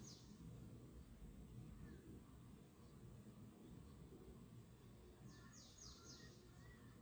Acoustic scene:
park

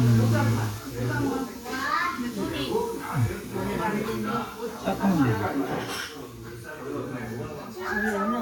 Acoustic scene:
restaurant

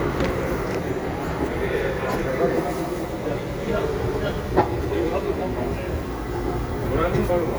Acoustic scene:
crowded indoor space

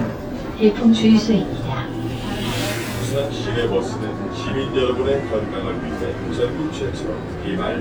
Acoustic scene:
bus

